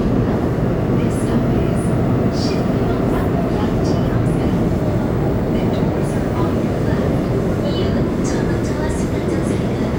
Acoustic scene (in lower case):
subway train